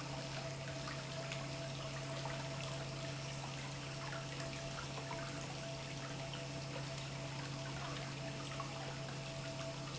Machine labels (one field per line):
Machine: pump